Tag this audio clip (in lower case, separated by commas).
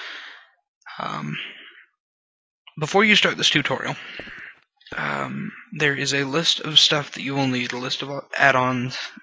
speech